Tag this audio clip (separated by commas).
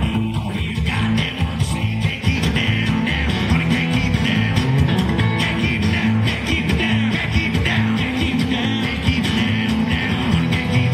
Singing, Music, Country